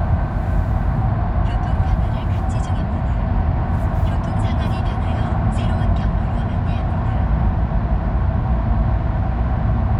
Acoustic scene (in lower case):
car